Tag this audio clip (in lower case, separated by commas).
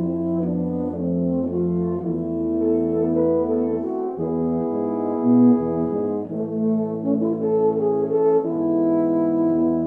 brass instrument, french horn